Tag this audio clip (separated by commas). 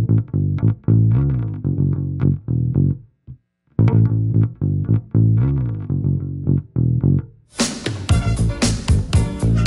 playing bass guitar